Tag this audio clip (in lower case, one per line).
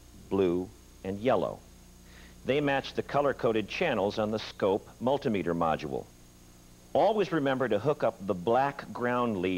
speech